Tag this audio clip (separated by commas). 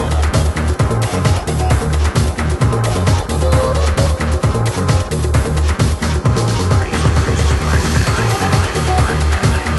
Music, Trance music